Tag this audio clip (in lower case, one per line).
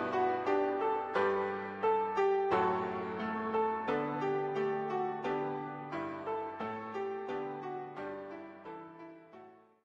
music